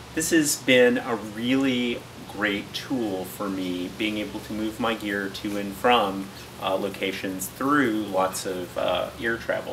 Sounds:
speech

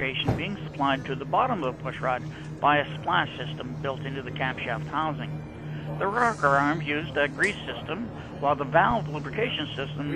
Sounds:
speech

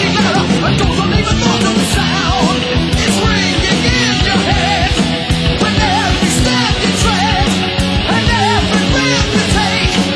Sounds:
music
punk rock

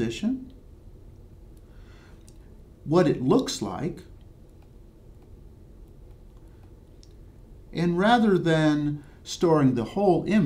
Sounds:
speech

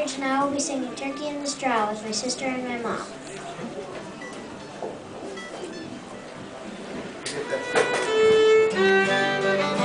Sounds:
speech
music

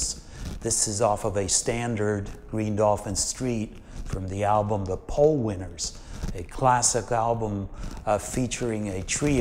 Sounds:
speech

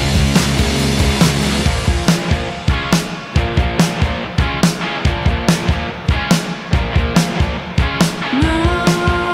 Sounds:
exciting music
music

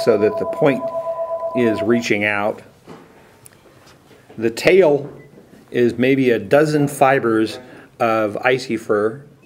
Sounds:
speech

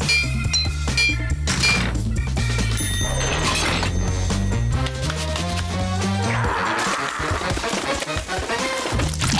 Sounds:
music

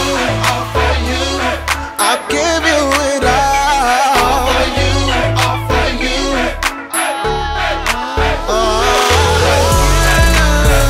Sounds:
gospel music
song
singing
rhythm and blues
music

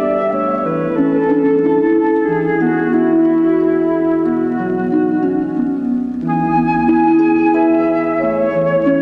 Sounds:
music

